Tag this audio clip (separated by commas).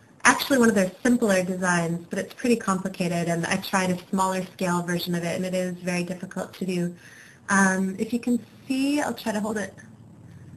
Speech